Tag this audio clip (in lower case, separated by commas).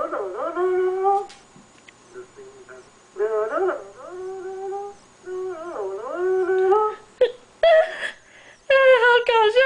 speech